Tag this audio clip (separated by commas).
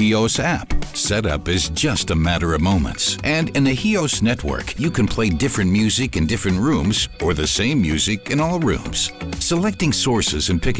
Speech, Music